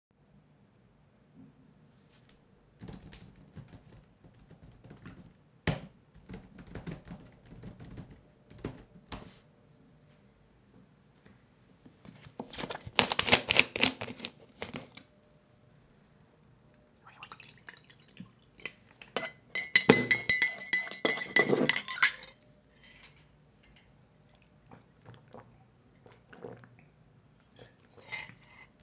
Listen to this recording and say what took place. I was typing on my laptop and poured some milk into my cup. Then I stirred it up and drunk it.